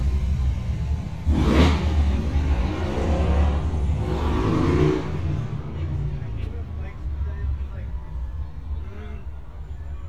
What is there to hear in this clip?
medium-sounding engine, person or small group talking